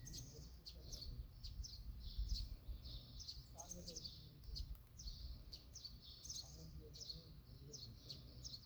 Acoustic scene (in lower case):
park